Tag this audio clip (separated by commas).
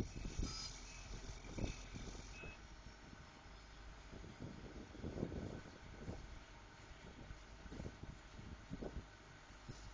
Silence, outside, rural or natural